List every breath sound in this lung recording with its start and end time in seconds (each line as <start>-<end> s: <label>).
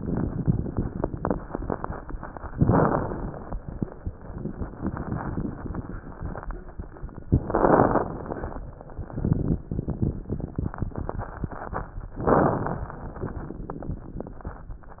2.54-3.55 s: inhalation
2.54-3.55 s: crackles
7.50-8.63 s: inhalation
7.50-8.63 s: crackles
12.18-13.05 s: inhalation
12.18-13.05 s: crackles